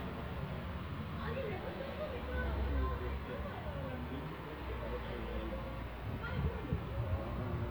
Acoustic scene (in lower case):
residential area